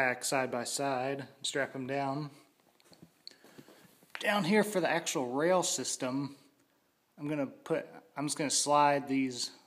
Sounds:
Speech

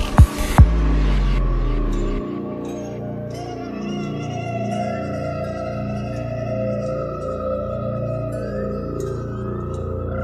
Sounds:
Music, Rock music

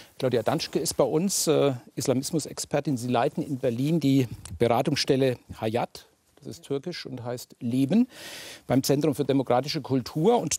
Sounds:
Speech

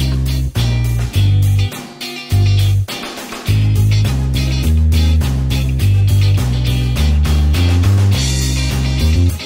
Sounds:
Music

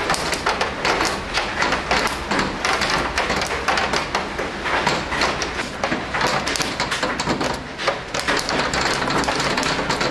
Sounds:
hail

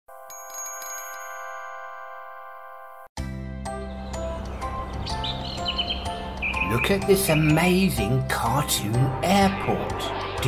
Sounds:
Speech, outside, rural or natural, Music

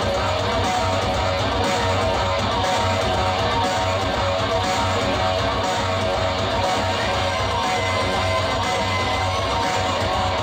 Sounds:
Plucked string instrument, Music, Guitar, Musical instrument

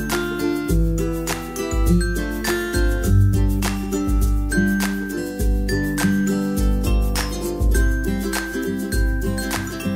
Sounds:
Music

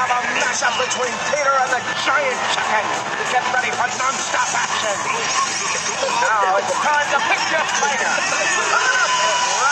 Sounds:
Speech, Music

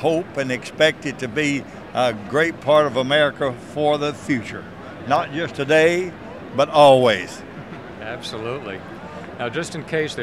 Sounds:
Speech

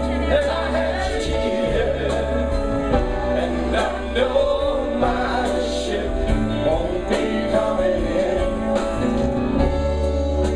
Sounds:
Music

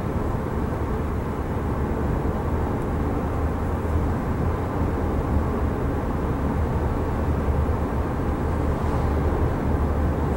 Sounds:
Vehicle, Car

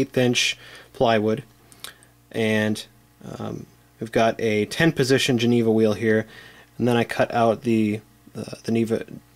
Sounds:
Speech

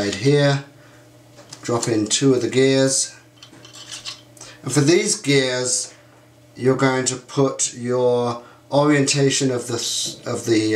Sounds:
Speech

